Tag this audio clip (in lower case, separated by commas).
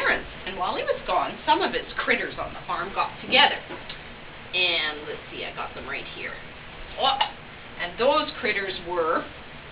speech